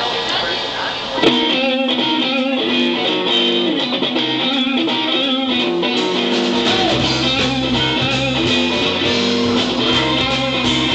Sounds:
music

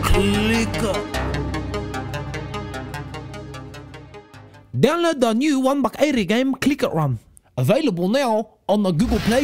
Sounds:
speech
music

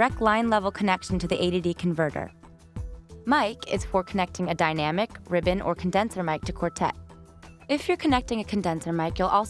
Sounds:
speech
music

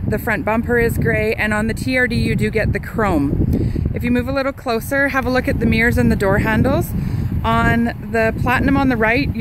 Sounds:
speech

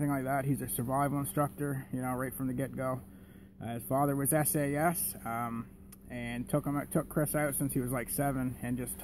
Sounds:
speech

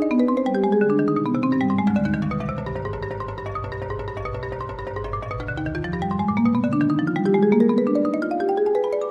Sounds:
musical instrument
vibraphone

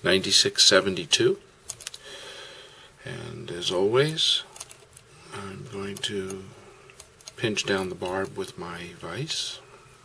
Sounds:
speech

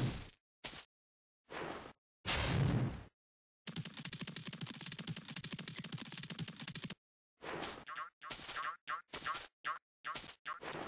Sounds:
sound effect

